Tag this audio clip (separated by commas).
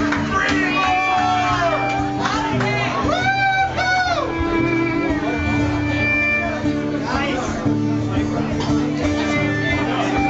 Speech, Music